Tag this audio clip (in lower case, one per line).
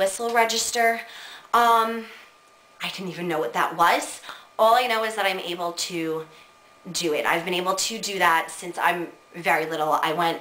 speech